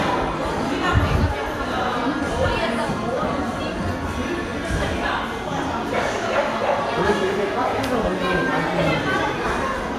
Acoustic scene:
crowded indoor space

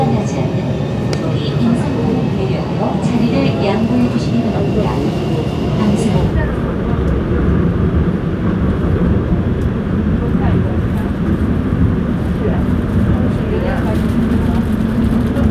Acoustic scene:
subway train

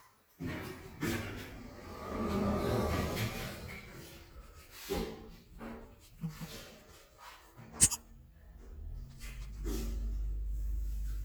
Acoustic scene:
elevator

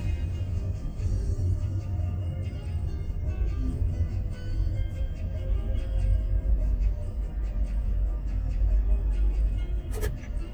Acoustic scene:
car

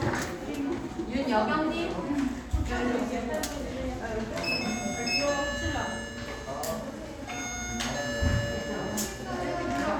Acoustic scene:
crowded indoor space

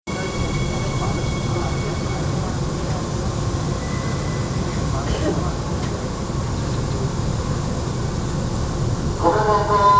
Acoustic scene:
subway train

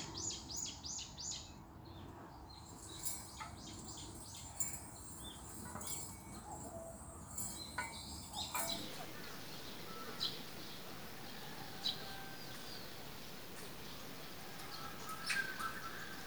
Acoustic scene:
park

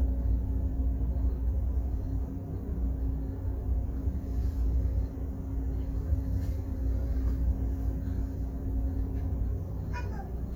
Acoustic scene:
bus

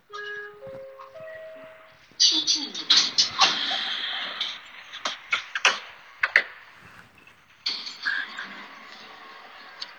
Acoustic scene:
elevator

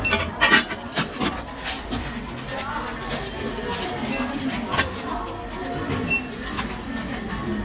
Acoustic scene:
crowded indoor space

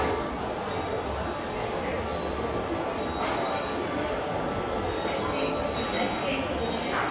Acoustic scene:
subway station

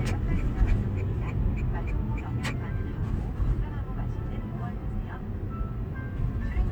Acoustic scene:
car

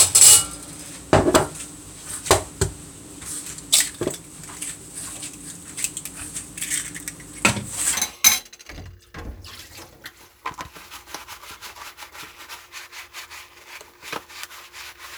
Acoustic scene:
kitchen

